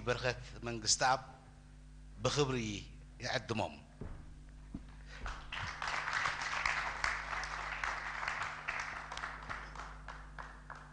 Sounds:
Speech

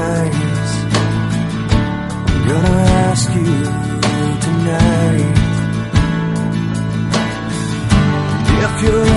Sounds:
Music

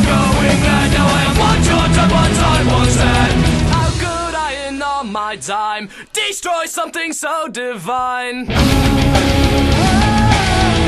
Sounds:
Music

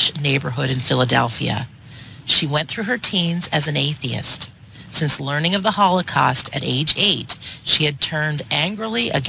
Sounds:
Speech

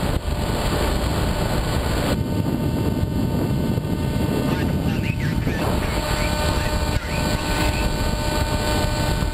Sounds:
Speech

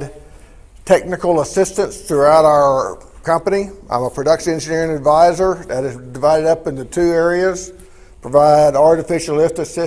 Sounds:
Speech

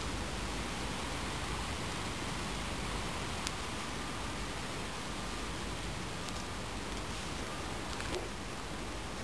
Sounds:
outside, rural or natural, Fire

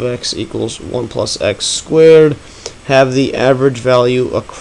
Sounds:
Speech

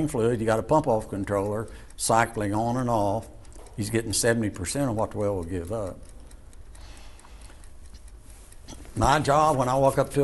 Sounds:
Speech

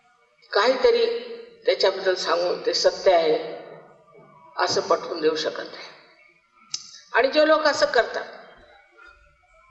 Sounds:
Speech, woman speaking, monologue, Speech synthesizer

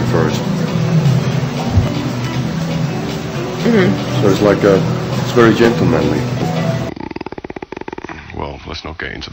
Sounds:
Music, Snoring, Speech

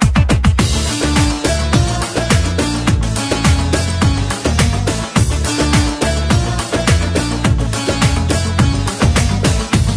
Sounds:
Music

